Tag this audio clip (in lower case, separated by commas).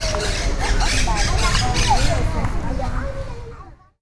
animal, wild animals, bird